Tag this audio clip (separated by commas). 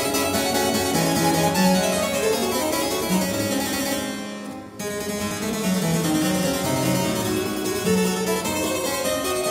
playing harpsichord